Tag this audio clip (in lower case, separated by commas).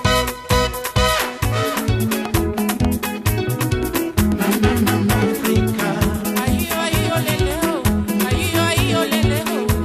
music, music of africa